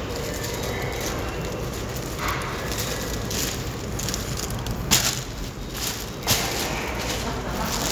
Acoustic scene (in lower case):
subway station